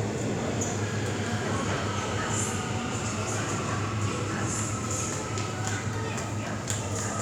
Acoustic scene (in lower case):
subway station